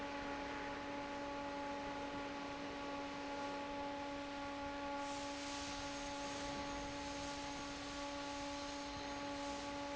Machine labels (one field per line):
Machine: fan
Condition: normal